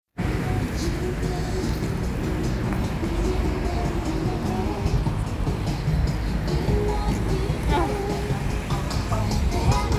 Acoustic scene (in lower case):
street